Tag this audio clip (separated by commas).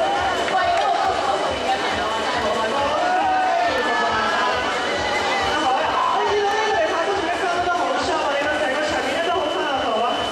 people crowd, Chatter, Run, Speech, Crowd